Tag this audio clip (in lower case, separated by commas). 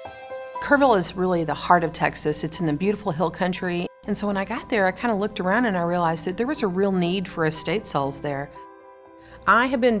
speech, music